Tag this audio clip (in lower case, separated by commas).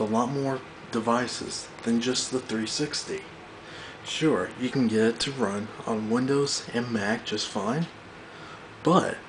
speech